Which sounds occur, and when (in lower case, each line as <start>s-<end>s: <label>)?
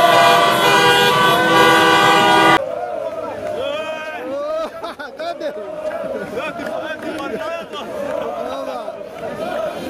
0.0s-2.6s: honking
0.0s-9.8s: crowd
3.6s-4.2s: male speech
4.4s-5.5s: male speech
6.4s-7.8s: male speech
8.5s-8.8s: male speech
9.1s-9.8s: male speech